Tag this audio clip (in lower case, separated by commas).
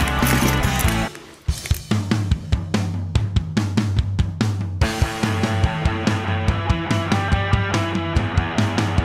music